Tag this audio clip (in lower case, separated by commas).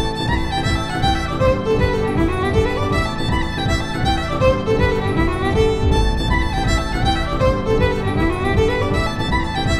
music, fiddle, musical instrument